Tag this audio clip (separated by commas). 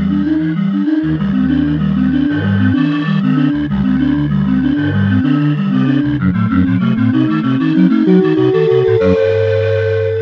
Music